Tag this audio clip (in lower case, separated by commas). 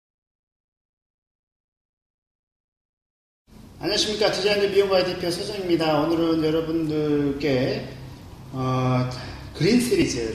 male speech, speech